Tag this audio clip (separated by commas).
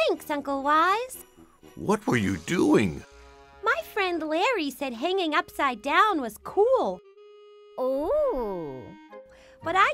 Music, Speech